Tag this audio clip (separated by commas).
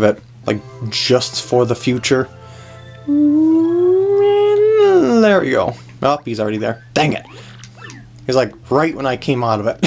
Speech, Music